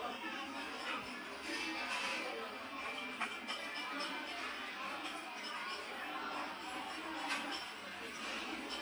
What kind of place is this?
restaurant